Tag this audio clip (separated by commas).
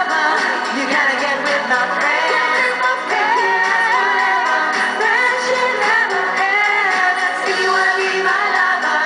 Music